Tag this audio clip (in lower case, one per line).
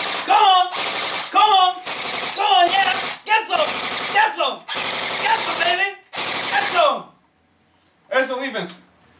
machine gun
speech